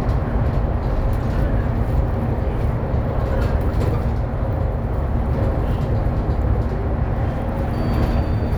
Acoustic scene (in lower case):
bus